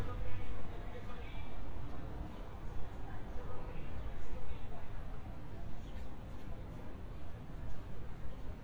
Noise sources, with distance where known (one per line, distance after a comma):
unidentified human voice, far